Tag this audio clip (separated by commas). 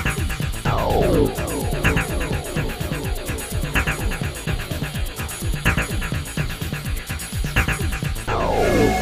Music